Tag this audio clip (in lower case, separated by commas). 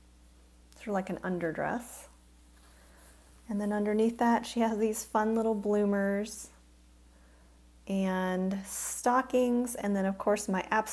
speech, inside a small room